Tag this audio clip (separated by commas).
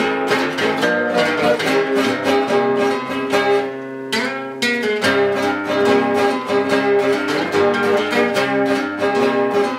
Plucked string instrument, Strum, Music, Musical instrument, Guitar